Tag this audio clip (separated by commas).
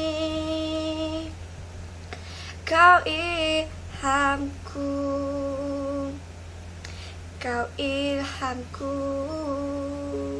Child singing